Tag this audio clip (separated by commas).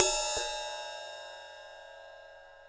Percussion, Cymbal, Musical instrument, Crash cymbal, Music